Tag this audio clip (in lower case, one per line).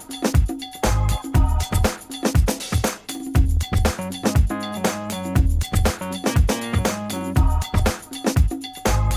music